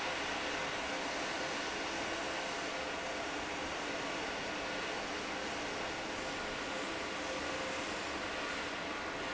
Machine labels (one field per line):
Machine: fan